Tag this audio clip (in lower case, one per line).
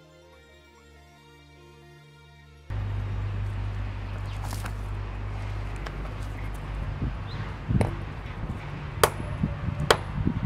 music